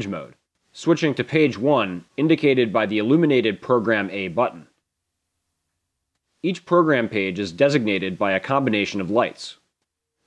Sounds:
Speech

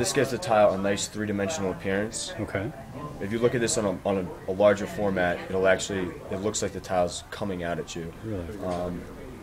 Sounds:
Speech

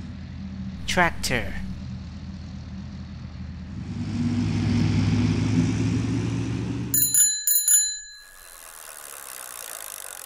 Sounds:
honking

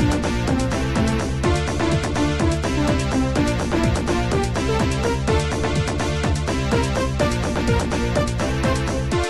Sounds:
Music

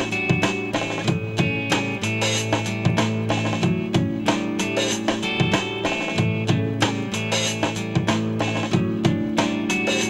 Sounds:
Music, Psychedelic rock

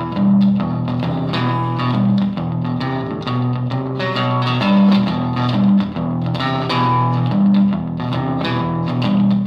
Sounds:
Music, Guitar, Musical instrument, Plucked string instrument, Electric guitar

